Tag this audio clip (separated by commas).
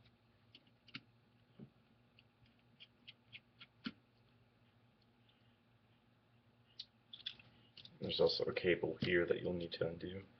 Speech